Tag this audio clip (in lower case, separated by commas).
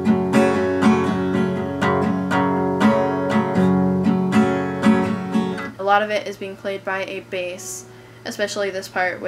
guitar, musical instrument, plucked string instrument, music, strum, speech